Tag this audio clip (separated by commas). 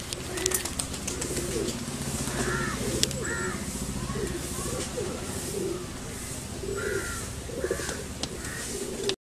Bird, Coo